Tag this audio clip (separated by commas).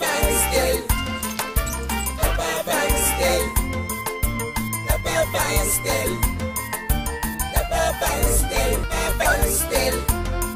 Music